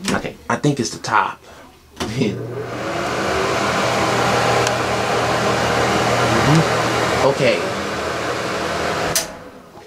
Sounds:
Speech, Mechanical fan

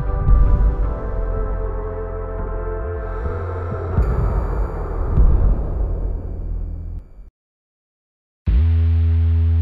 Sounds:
Theme music, Music

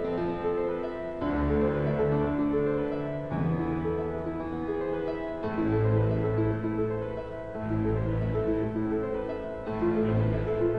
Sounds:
Music

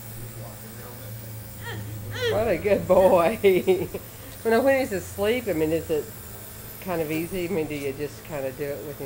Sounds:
Speech

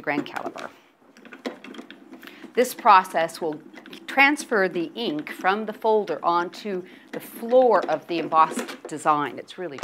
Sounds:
inside a small room, Speech

